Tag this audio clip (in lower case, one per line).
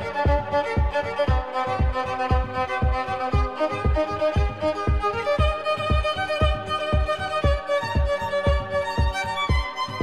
violin
music
musical instrument